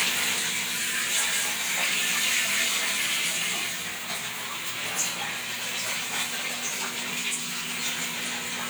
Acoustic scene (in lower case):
restroom